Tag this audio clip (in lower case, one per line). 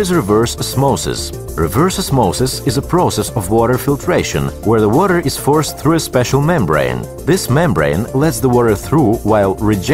speech
music